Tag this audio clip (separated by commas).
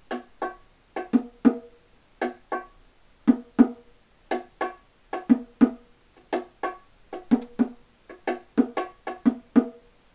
playing bongo